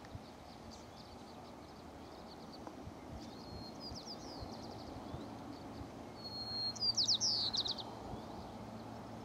Birds chirp and tweet